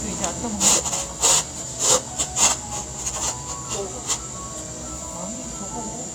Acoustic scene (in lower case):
cafe